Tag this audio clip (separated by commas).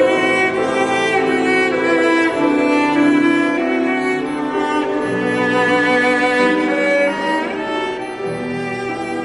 Music, Musical instrument, Cello, Bowed string instrument